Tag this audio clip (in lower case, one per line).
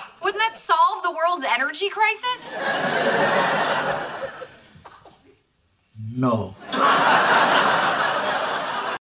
speech